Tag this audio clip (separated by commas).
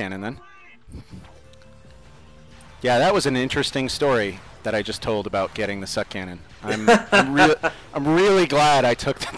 Speech, Music